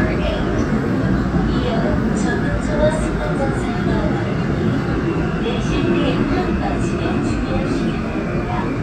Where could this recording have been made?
on a subway train